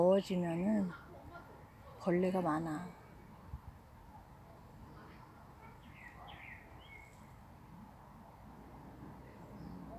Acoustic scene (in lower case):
park